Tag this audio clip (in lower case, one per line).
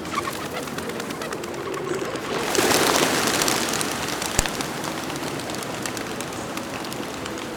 wild animals
animal
bird